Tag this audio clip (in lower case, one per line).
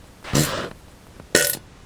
fart